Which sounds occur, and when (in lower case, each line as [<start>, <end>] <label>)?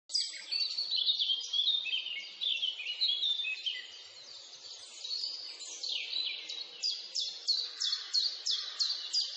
[0.00, 9.35] background noise
[0.04, 9.35] bird vocalization
[7.60, 8.19] animal
[8.47, 9.04] animal